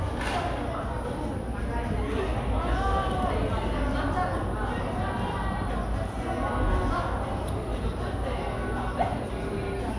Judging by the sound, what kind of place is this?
cafe